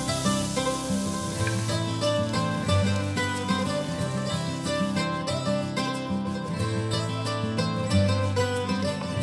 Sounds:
Music

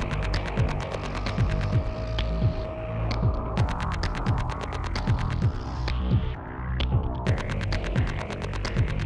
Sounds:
Music

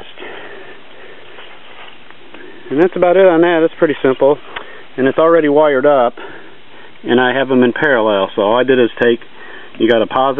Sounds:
outside, rural or natural, Speech

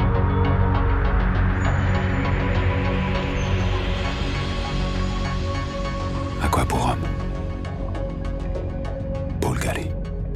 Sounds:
Speech, Music

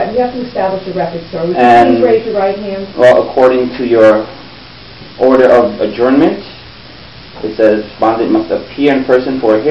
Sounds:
Speech

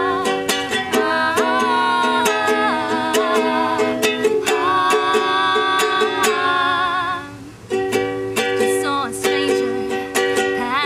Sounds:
Music

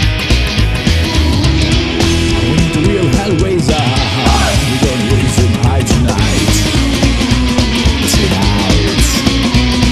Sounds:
Punk rock, Music

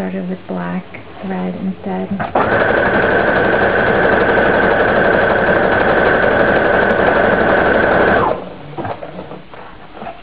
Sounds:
Speech, inside a small room

